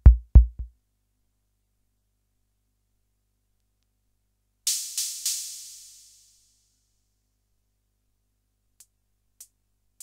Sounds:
musical instrument, music, drum machine

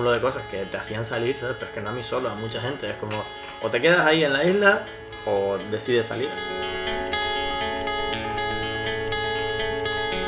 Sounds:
music, speech

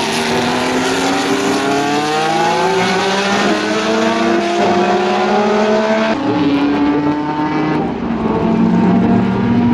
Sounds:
vehicle, car, race car

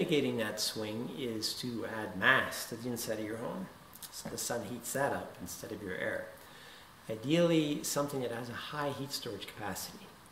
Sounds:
speech

